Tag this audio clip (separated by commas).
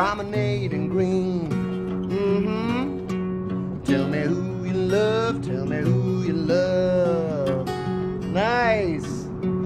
Music